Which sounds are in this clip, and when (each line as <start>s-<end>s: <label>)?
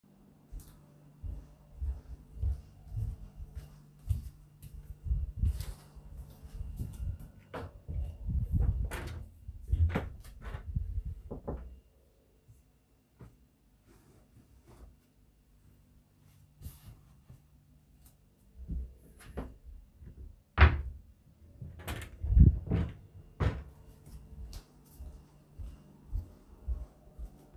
0.5s-7.3s: footsteps
7.6s-11.7s: wardrobe or drawer
18.7s-23.7s: wardrobe or drawer
24.5s-27.4s: footsteps